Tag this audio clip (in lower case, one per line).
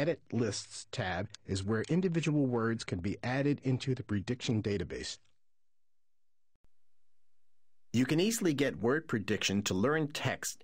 speech